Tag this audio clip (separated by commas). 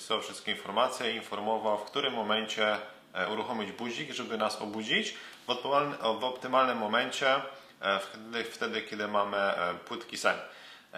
Speech